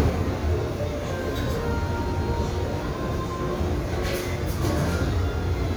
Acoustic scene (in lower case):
restaurant